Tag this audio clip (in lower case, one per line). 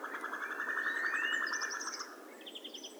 bird
wild animals
animal